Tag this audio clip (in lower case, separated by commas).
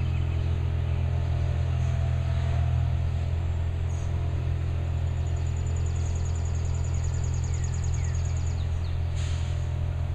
vehicle